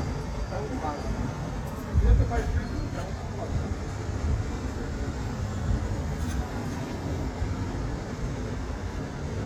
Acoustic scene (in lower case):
street